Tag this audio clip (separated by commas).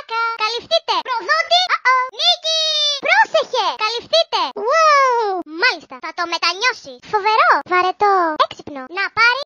Child speech, Speech